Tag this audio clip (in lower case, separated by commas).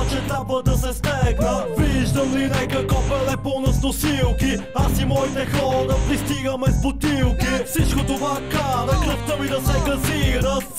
music